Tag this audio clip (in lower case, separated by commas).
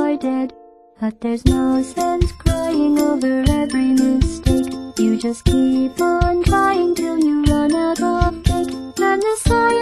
music